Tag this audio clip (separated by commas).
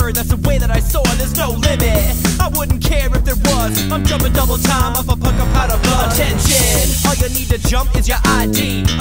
Music